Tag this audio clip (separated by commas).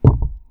thud